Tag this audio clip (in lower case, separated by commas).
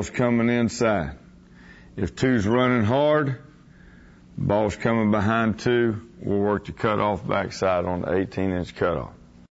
speech